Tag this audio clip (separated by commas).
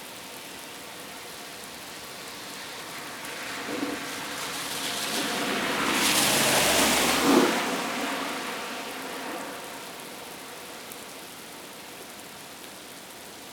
Water, Rain